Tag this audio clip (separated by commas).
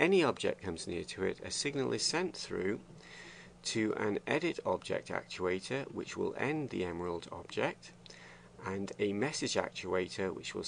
Speech